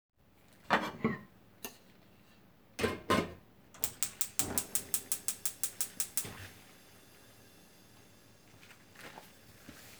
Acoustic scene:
kitchen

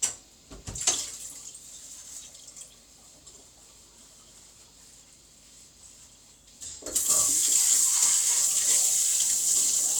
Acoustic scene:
kitchen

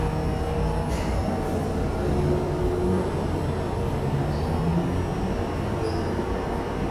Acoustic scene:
subway station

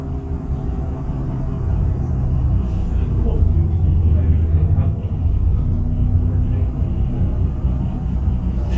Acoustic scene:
bus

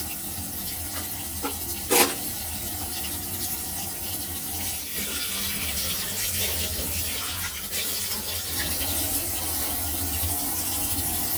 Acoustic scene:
kitchen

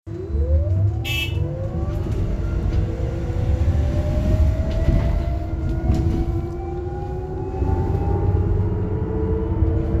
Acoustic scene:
bus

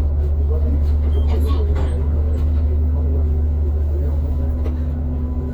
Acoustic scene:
bus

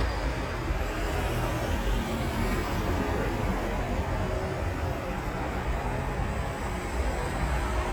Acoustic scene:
street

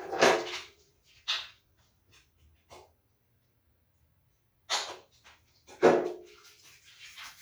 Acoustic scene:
restroom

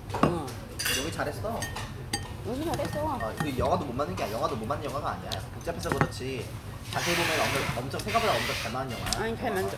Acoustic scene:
restaurant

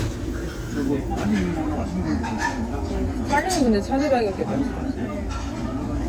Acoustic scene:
restaurant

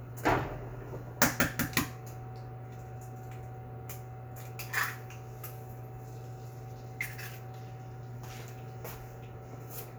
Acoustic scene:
kitchen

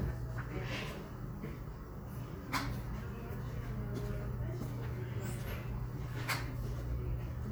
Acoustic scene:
crowded indoor space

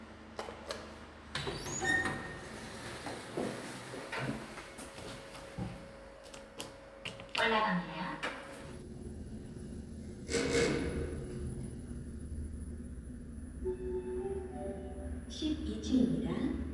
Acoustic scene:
elevator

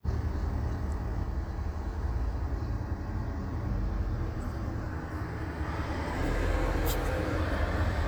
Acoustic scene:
street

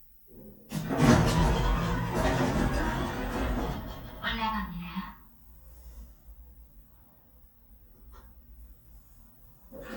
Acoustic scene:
elevator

